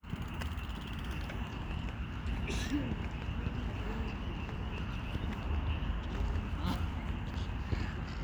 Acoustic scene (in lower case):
park